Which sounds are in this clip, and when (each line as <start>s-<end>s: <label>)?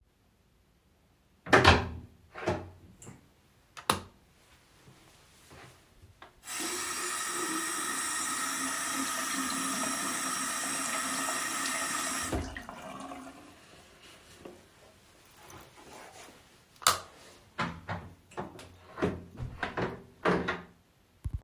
1.4s-2.8s: door
3.7s-4.1s: light switch
6.4s-14.1s: running water
16.8s-17.1s: light switch
17.6s-20.7s: door